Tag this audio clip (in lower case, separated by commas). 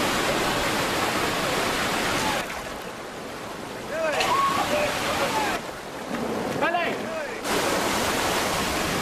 slosh, outside, rural or natural, speech, waterfall, rain